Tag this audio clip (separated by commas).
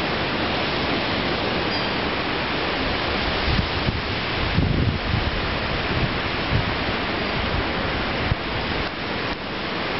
Wind noise (microphone), wind noise